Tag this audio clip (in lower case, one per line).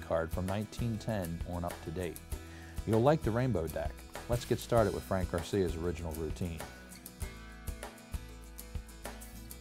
speech
music